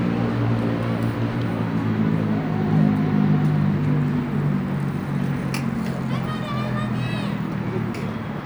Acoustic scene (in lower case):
residential area